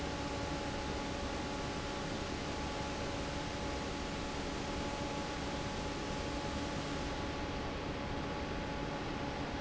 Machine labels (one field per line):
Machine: fan